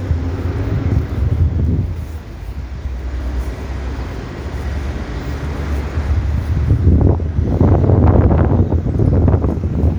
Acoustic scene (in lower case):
street